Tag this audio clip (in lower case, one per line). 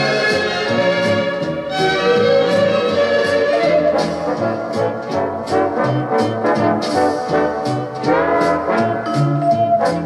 music